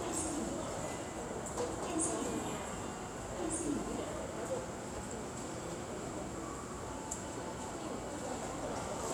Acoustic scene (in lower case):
subway station